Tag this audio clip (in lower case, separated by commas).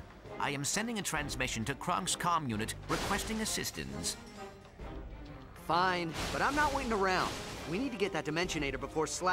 music, speech